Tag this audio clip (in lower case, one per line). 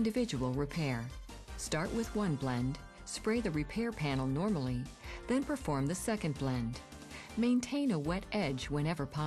music
speech